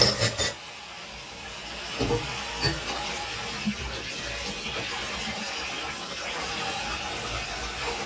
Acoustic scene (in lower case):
kitchen